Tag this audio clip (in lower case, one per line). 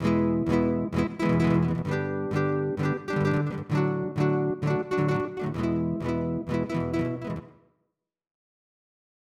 music
guitar
musical instrument
plucked string instrument